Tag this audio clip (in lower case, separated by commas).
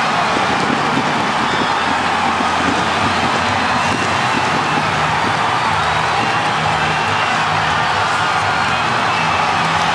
music